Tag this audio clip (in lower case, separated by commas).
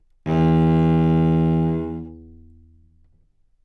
musical instrument, bowed string instrument, music